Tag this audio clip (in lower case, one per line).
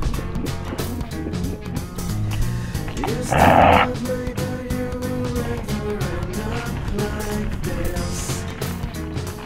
music